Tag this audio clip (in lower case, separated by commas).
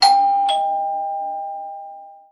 home sounds, alarm, doorbell, door